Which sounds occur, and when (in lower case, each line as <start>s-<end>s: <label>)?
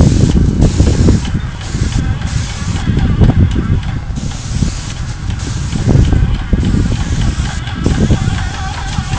0.0s-9.1s: wind noise (microphone)
1.5s-9.1s: mechanisms
7.8s-9.1s: spray